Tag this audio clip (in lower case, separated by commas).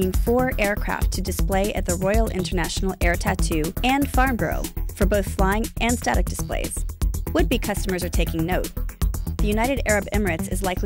music, speech